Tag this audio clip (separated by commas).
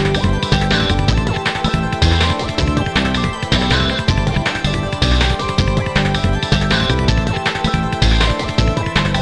Music